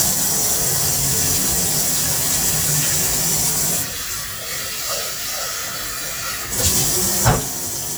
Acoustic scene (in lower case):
kitchen